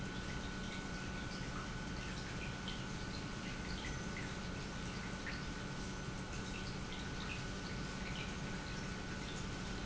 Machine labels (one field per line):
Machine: pump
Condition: normal